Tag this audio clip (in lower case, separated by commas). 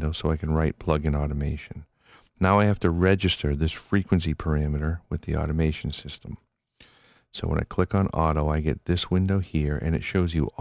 speech